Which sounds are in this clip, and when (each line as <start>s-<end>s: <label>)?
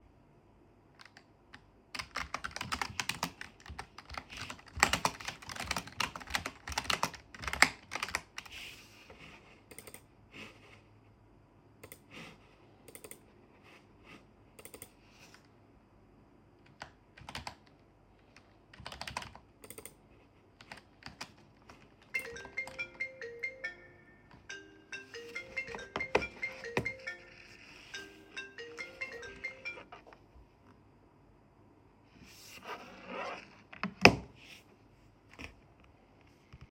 0.9s-1.4s: keyboard typing
1.9s-8.9s: keyboard typing
16.8s-17.0s: keyboard typing
17.0s-23.1s: keyboard typing
23.6s-30.2s: phone ringing